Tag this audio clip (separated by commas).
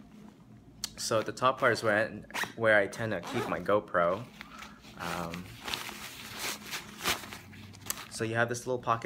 Speech